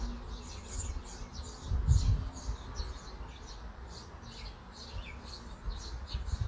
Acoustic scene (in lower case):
park